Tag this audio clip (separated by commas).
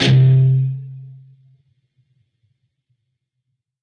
Music, Musical instrument, Plucked string instrument, Guitar